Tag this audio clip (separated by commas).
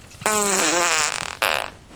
Fart